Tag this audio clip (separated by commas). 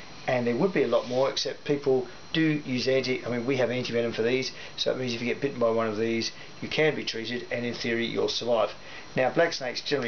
Speech, inside a small room